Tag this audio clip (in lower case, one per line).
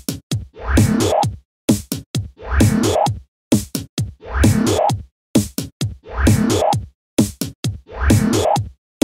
techno
music
funk
electronic music